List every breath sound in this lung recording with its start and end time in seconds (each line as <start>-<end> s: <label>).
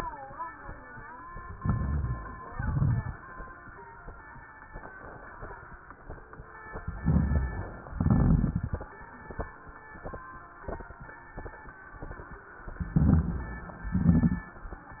1.57-2.49 s: inhalation
1.57-2.49 s: crackles
2.54-3.36 s: exhalation
2.54-3.36 s: crackles
6.89-7.80 s: inhalation
6.89-7.80 s: crackles
7.91-8.82 s: exhalation
7.91-8.82 s: crackles
12.92-13.83 s: crackles
12.94-13.85 s: inhalation
13.91-14.63 s: exhalation
13.91-14.63 s: crackles